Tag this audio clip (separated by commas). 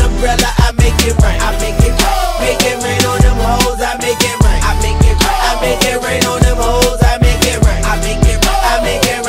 Music